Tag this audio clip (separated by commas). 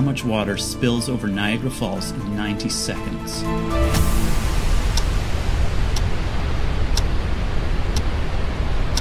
Waterfall